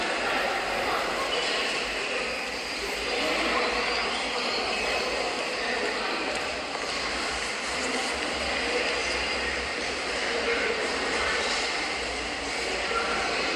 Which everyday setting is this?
subway station